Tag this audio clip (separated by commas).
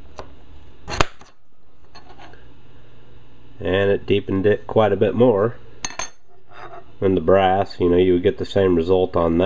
Tools, Speech